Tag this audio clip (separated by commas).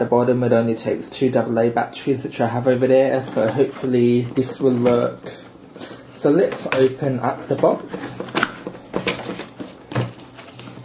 Speech